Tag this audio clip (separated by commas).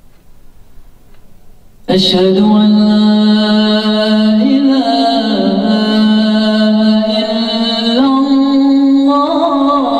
inside a small room